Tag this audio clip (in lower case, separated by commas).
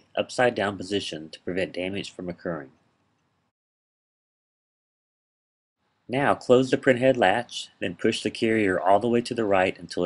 speech